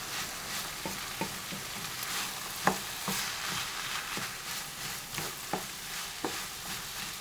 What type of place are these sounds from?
kitchen